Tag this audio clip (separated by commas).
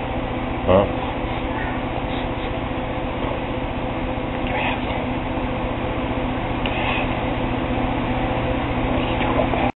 Speech